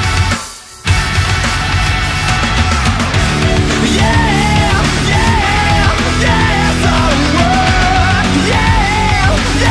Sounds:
music

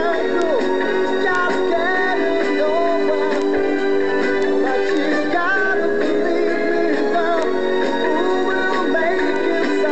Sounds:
soul music
music

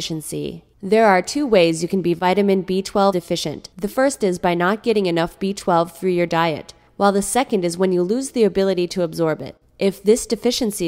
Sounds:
speech

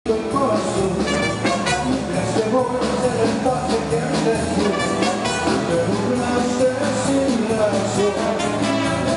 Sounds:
music
rock and roll
singing

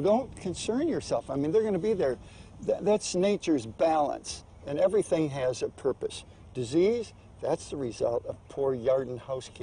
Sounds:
speech

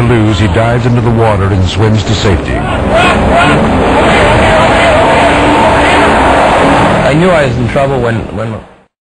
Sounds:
speech
motorboat
vehicle

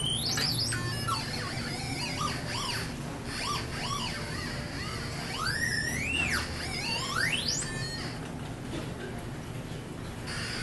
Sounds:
inside a public space

